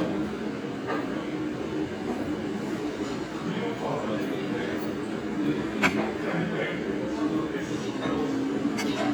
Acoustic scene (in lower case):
restaurant